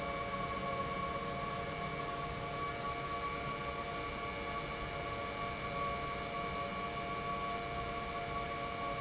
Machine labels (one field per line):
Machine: pump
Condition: normal